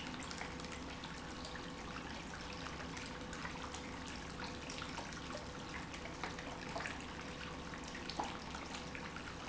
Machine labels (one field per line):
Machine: pump